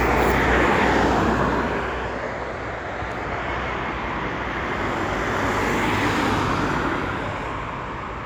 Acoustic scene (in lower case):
street